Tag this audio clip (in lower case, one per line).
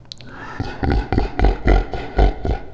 human voice
laughter